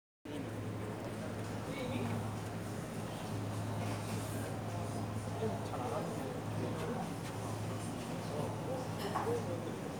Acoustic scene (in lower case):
cafe